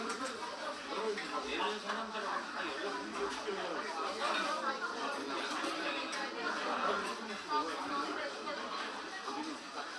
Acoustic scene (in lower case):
restaurant